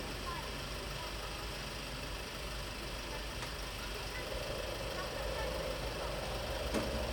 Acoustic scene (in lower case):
residential area